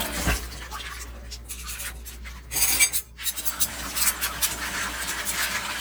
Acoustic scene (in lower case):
kitchen